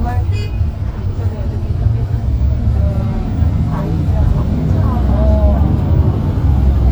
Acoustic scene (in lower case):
bus